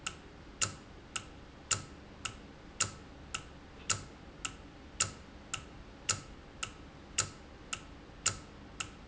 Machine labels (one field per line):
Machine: valve